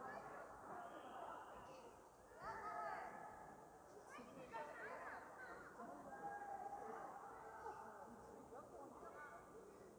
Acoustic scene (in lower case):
park